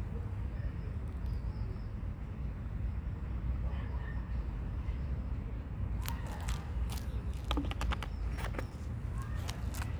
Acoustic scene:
residential area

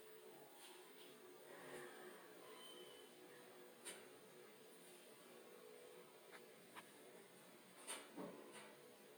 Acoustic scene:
elevator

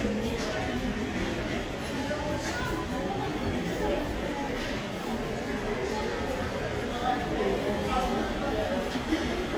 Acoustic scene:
crowded indoor space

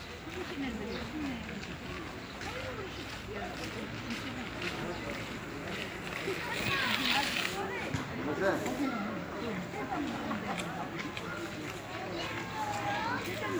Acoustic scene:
park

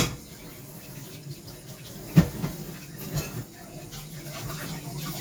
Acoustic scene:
kitchen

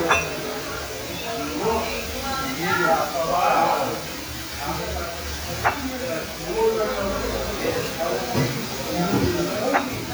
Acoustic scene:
restaurant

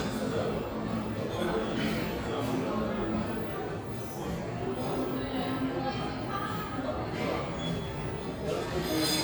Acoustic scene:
cafe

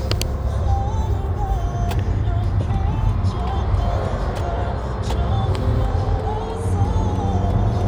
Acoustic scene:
car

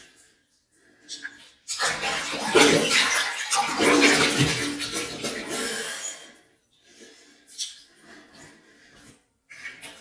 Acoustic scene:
restroom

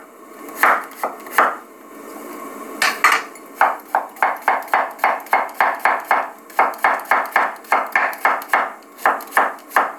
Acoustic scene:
kitchen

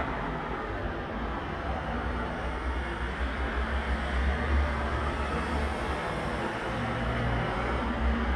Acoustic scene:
street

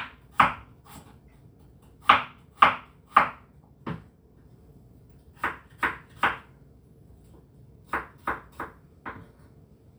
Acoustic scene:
kitchen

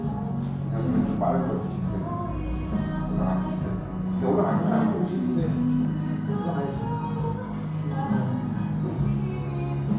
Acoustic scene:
cafe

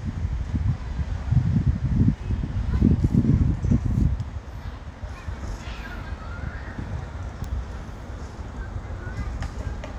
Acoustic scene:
residential area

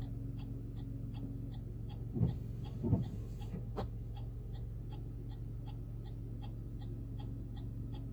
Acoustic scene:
car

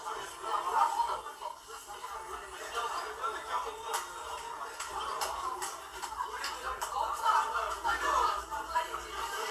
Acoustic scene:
crowded indoor space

